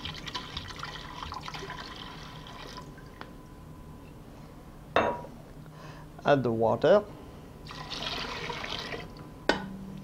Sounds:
speech, inside a small room, liquid, fill (with liquid)

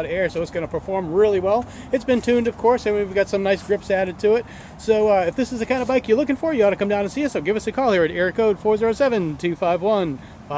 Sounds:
speech

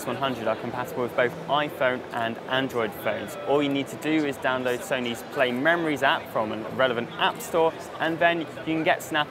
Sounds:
speech

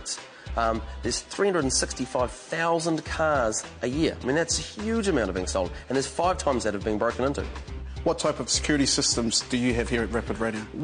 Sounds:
speech, music

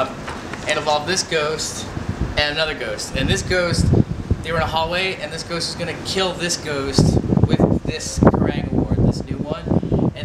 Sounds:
speech, male speech, monologue

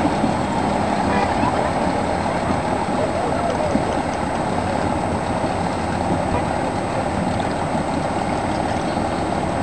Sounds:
sailboat, vehicle, water vehicle, speech

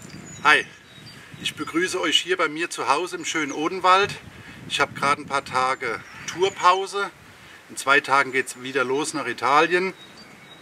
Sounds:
speech

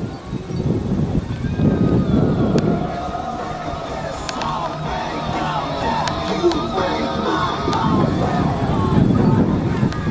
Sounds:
music

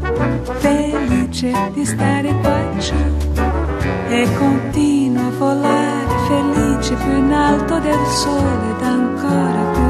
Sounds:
music, tender music

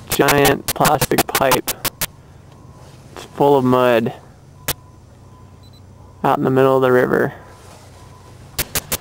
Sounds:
speech

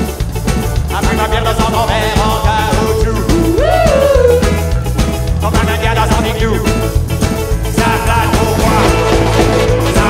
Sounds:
music

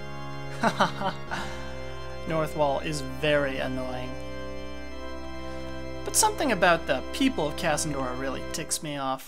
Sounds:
speech, music

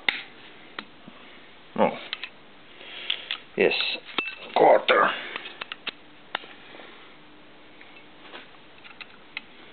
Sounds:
speech, tools

